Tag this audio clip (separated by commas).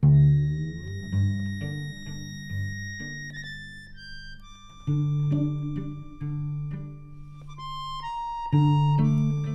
Musical instrument, Music